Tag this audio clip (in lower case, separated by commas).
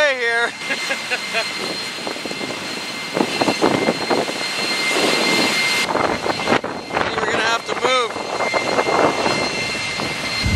aircraft, speech